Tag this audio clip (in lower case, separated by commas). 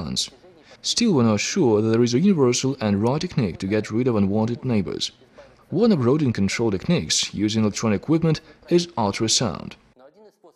speech